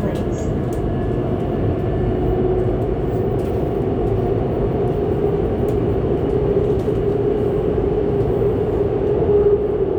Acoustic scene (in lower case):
subway train